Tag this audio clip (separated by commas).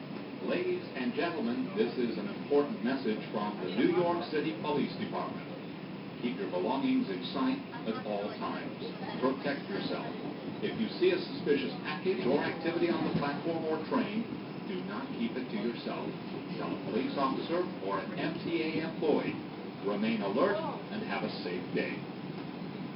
Vehicle, Subway, Rail transport